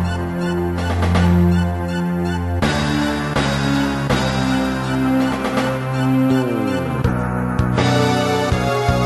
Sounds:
music

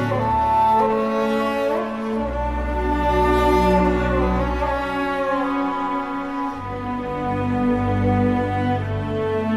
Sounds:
cello

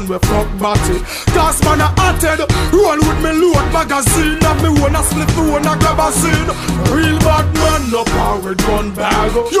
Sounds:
music

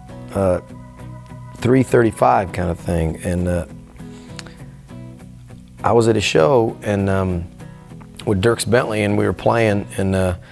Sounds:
plucked string instrument
musical instrument
guitar
speech
music

